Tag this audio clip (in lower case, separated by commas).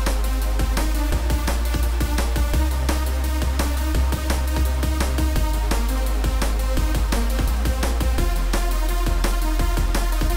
music, background music